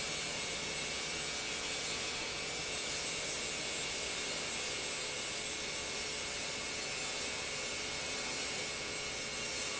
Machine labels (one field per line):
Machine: pump